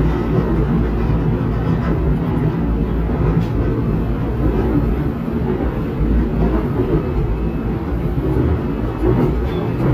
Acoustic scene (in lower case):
subway train